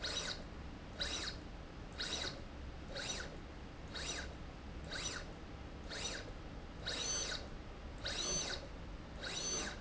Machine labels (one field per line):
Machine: slide rail